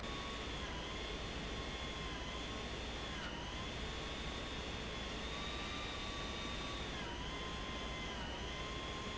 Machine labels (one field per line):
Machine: pump